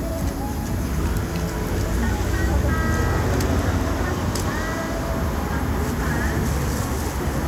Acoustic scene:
street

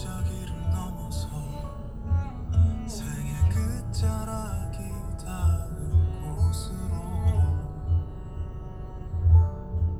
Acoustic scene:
car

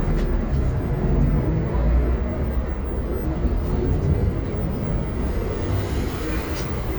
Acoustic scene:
bus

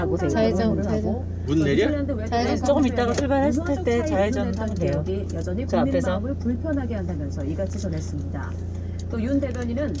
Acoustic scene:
car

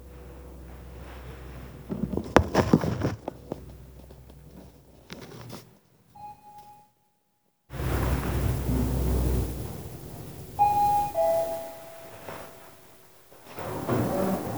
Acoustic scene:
elevator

